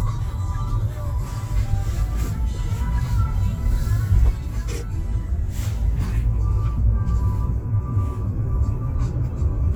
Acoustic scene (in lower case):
car